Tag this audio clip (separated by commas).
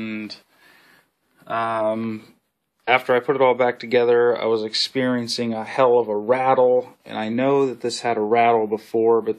Speech